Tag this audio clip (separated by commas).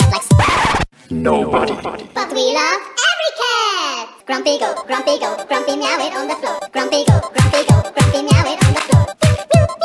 Speech, Music